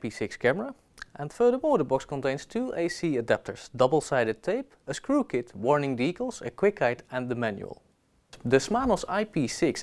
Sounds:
Speech

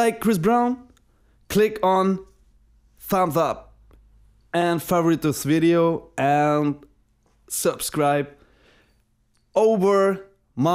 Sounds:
Speech

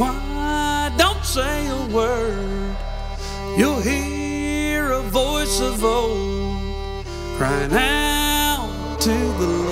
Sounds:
Music

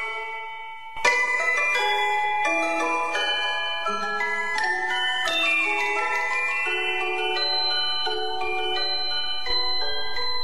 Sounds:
Music

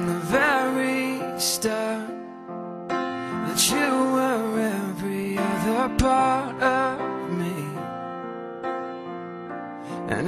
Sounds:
Music

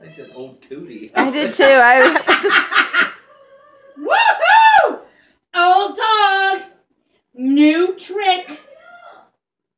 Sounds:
inside a small room, Speech

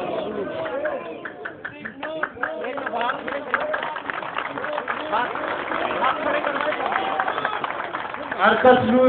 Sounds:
Male speech, Speech

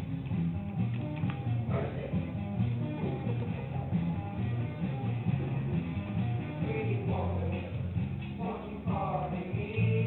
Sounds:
Male singing, Music

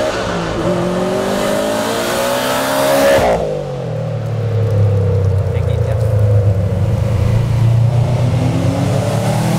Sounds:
Speech

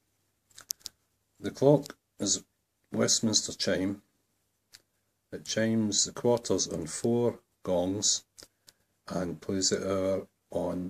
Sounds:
Speech, Tick

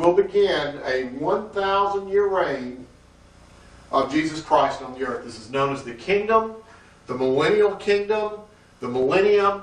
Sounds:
Speech

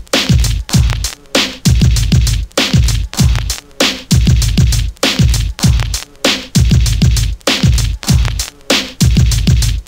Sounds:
Music

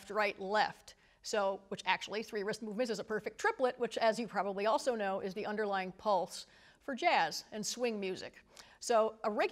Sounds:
Speech

